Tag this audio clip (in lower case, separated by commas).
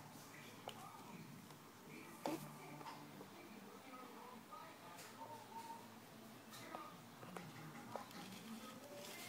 speech, inside a small room